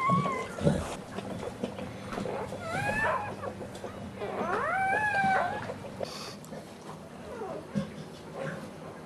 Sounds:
Dog, pets, canids, Animal, inside a small room

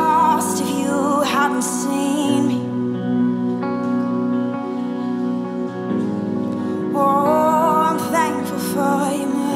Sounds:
Music

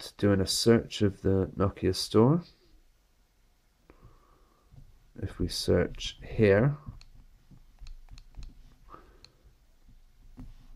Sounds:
inside a small room, Speech

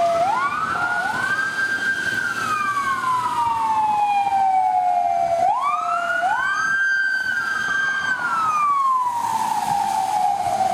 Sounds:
Siren, Emergency vehicle, Police car (siren)

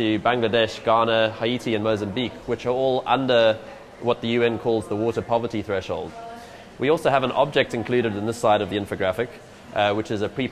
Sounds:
Speech

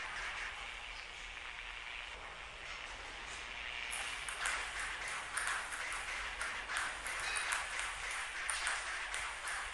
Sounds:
playing table tennis

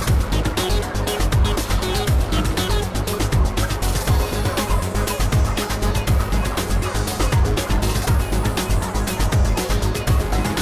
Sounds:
Fowl, Turkey, Gobble

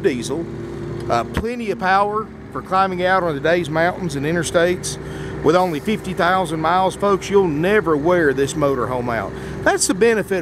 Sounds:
Speech

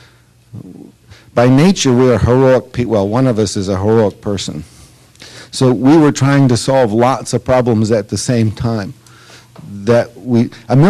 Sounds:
monologue, Speech

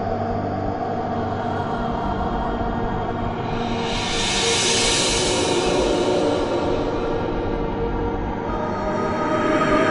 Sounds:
Music, Scary music

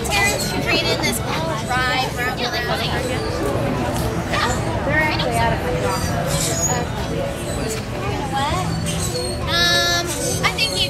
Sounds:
Speech, Music

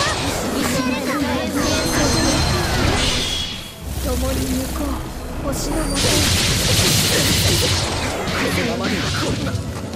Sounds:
Speech

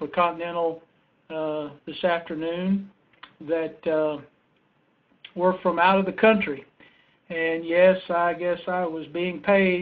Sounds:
Speech

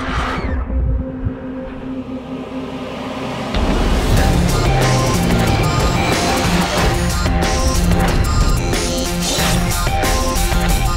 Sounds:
Music

